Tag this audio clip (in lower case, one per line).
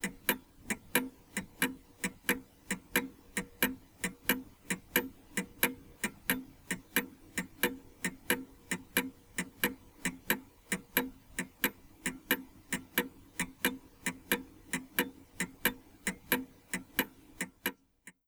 mechanisms
clock